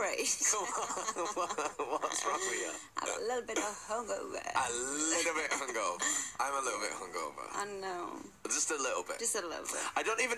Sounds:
speech

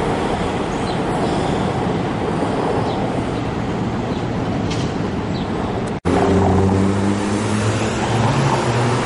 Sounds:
motor vehicle (road), vehicle, subway, train, roadway noise

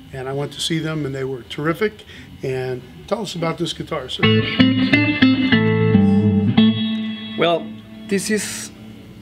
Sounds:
music, speech, guitar, musical instrument, plucked string instrument

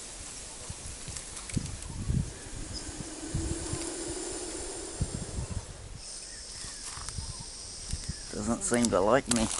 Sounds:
snake hissing

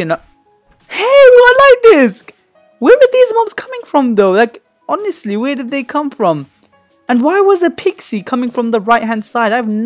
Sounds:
monologue

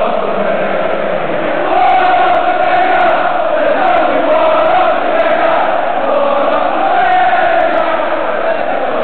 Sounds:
male singing

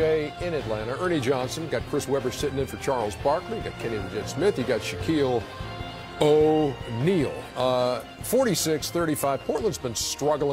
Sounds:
music, speech

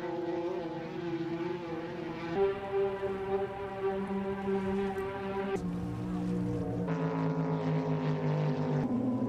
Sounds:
motorboat, water vehicle, vehicle

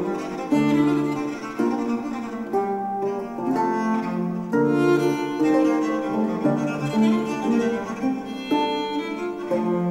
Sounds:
musical instrument, plucked string instrument, music, bowed string instrument

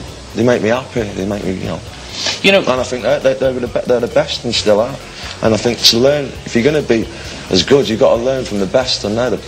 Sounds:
speech

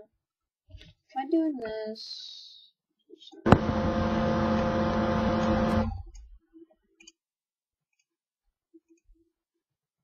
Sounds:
speech

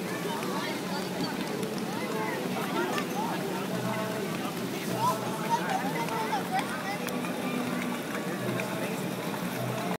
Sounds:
boat, music, speech

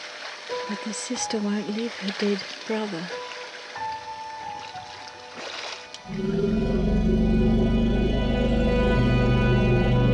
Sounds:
speech, wild animals, animal, music

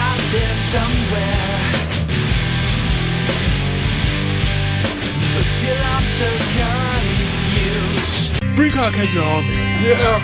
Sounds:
music, speech

